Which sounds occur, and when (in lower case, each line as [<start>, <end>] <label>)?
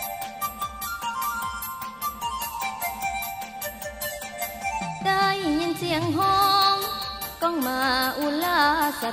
[0.00, 9.12] music
[7.41, 9.12] female speech